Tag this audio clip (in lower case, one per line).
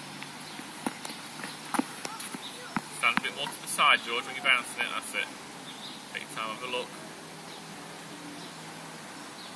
playing tennis